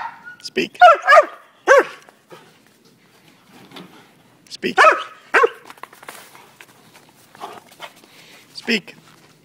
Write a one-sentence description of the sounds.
Male giving a dog a command and dog responding with a bark